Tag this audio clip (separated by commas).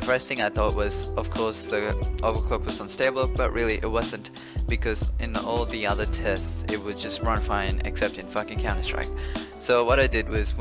Speech, Music